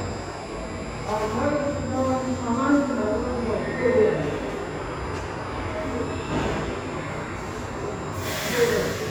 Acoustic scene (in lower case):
subway station